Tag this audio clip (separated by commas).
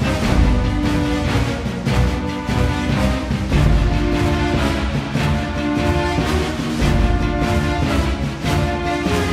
Music